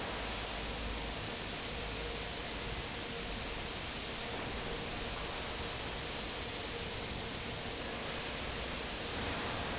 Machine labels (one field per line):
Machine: fan